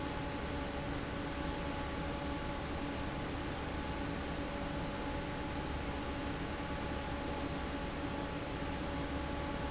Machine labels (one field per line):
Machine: fan